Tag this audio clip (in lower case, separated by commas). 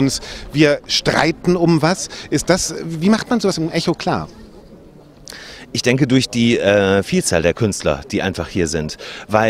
speech